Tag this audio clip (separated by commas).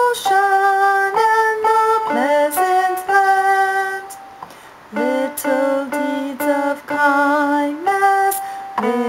Music